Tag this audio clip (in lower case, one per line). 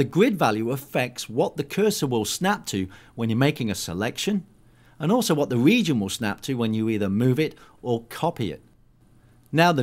speech